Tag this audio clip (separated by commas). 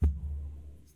thud